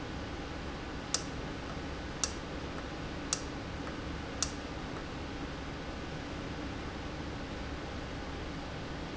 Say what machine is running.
valve